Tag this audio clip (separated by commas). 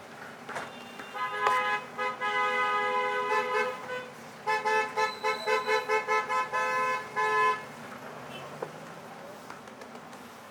Motor vehicle (road), Vehicle